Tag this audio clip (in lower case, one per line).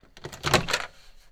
domestic sounds
microwave oven